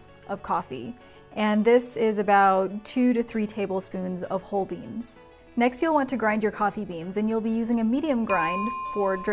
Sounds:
Speech, Music

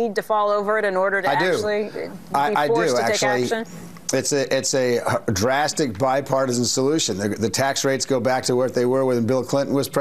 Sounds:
Speech

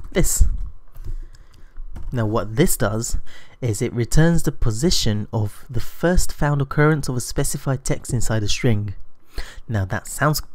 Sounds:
Speech

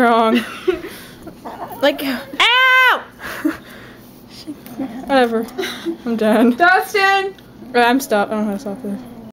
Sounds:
Speech

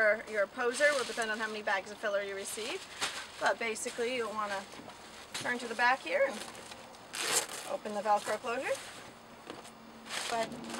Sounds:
Speech

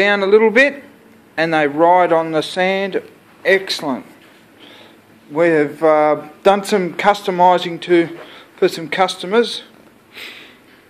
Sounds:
Speech

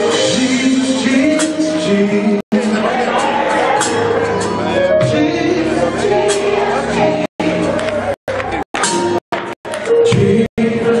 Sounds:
Speech, Music

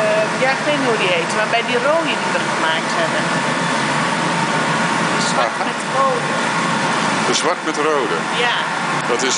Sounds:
Speech

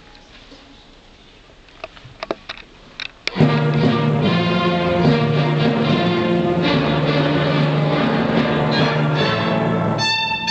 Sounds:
Music, Violin, Musical instrument

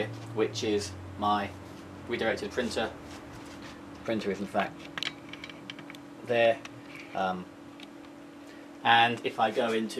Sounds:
Speech

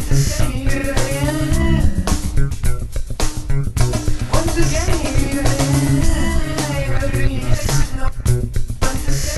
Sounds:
Music, Soundtrack music

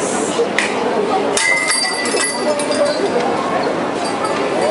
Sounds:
Speech

